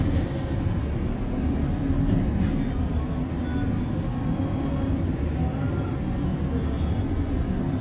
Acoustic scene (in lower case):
bus